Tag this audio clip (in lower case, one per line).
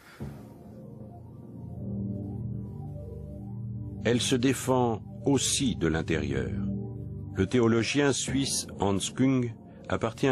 music
speech